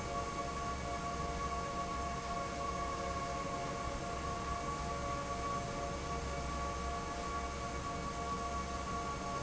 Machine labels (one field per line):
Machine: fan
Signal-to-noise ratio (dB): -6 dB